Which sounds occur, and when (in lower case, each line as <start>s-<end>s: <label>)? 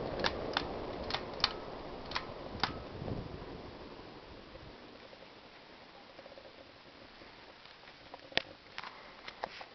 0.0s-9.7s: mechanical fan
0.0s-9.7s: background noise